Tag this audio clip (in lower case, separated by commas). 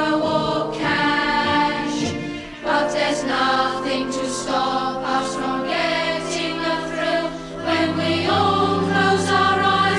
music, a capella